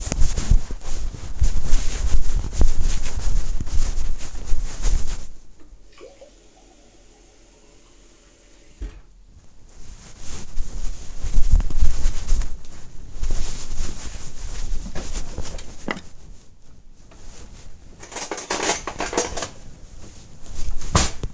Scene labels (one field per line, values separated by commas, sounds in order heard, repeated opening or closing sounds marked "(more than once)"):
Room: kitchen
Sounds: running water, wardrobe or drawer (more than once), cutlery and dishes